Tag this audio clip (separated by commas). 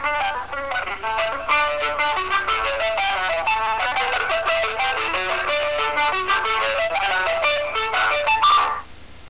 Funny music, Music